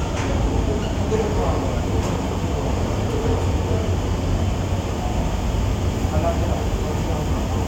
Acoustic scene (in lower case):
subway station